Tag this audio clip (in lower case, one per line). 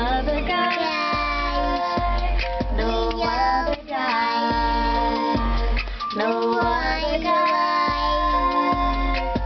female singing
child singing
music